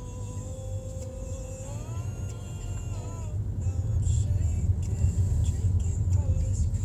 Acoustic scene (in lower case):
car